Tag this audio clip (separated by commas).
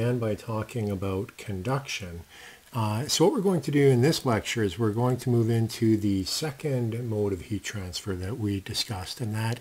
Speech